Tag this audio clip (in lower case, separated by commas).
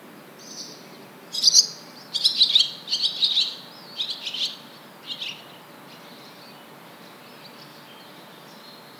wild animals, bird, animal